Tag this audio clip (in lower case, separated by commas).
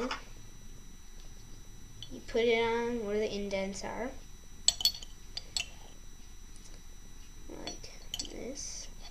speech